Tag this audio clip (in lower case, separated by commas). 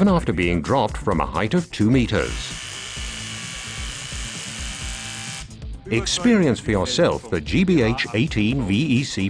speech, power tool, tools, drill, music